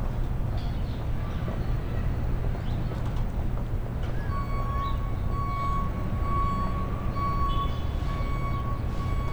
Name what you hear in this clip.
reverse beeper